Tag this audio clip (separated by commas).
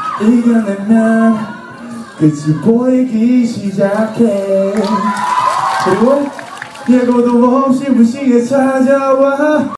Male singing